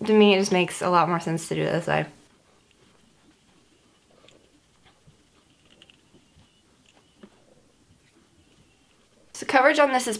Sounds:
inside a small room, speech

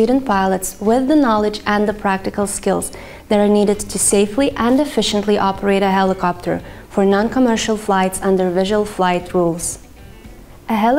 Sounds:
speech, music

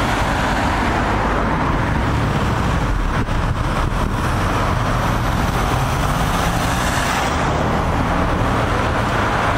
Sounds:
vehicle, motor vehicle (road), car

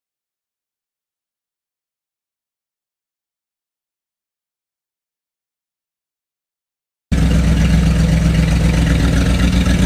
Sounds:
vehicle, truck

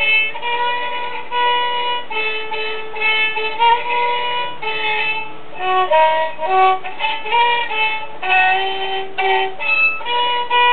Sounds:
musical instrument, fiddle, music

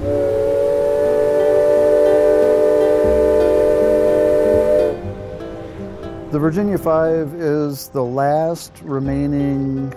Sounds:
music, speech

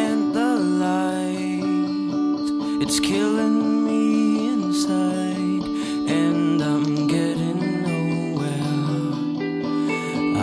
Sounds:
music, soul music

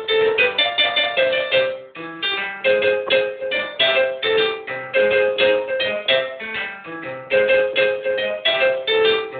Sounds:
music, piano, keyboard (musical), electric piano, musical instrument

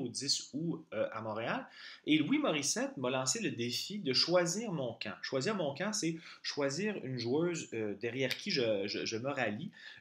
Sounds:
speech

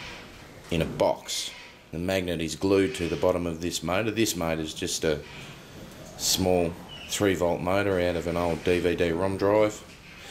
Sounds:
speech

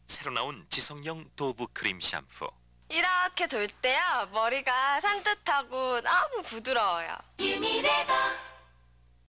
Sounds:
speech, music

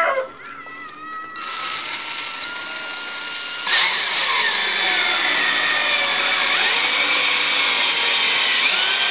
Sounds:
power tool, tools

